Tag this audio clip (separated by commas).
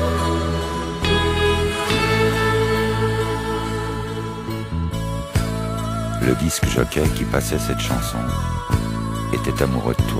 Speech, Music